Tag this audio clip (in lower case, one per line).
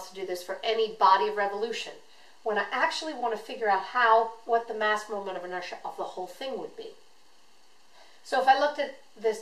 inside a small room
speech